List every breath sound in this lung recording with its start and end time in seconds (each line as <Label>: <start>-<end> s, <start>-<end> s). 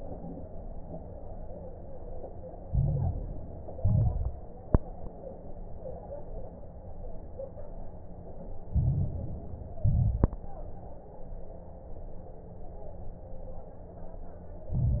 Inhalation: 2.64-3.74 s, 8.70-9.80 s, 14.71-15.00 s
Exhalation: 3.78-4.37 s, 9.80-10.39 s
Crackles: 2.64-3.74 s, 3.78-4.37 s, 8.70-9.80 s, 9.80-10.39 s, 14.71-15.00 s